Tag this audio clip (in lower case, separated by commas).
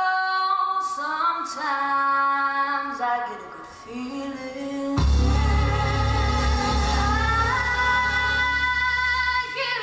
music, female singing